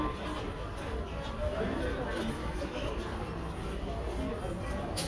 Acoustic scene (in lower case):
crowded indoor space